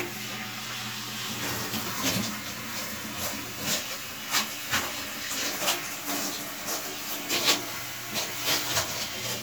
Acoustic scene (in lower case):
restroom